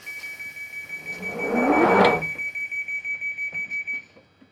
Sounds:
Rail transport, home sounds, Vehicle, Subway, Door

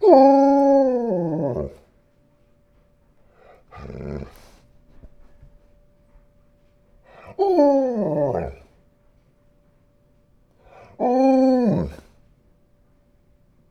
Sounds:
Dog, pets, Animal

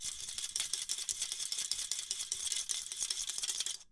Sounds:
Rattle

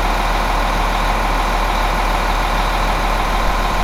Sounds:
Bus, Engine, Vehicle, Motor vehicle (road), Idling

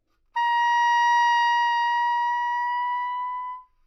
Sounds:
Wind instrument, Music, Musical instrument

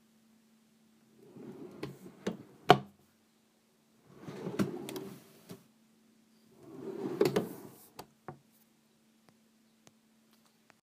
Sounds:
Domestic sounds, Drawer open or close

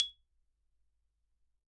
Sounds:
Music, Musical instrument, Mallet percussion, Percussion, Marimba

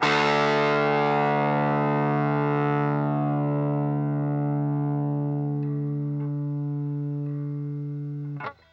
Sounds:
Music, Plucked string instrument, Guitar, Musical instrument

